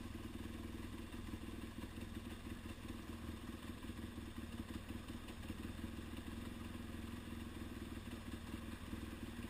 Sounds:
vehicle

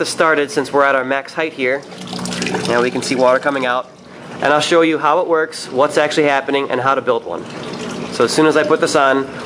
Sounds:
speech

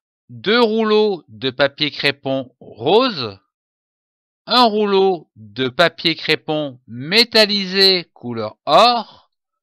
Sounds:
speech

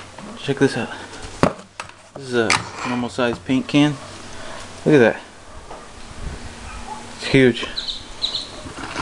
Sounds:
speech

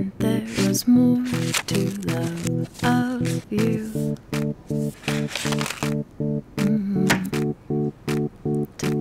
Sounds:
music

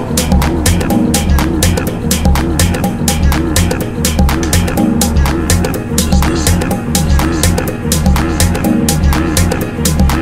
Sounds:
music

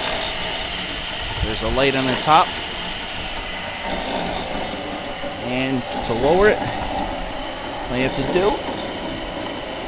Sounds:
speech

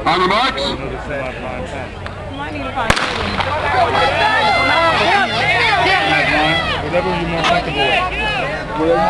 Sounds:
speech
outside, urban or man-made

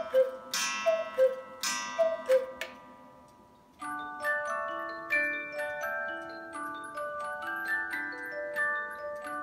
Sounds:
music

